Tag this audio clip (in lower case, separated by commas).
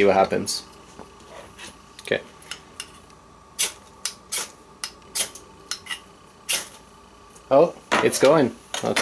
inside a small room, speech